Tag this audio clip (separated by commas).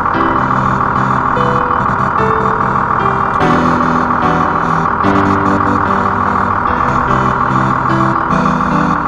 Music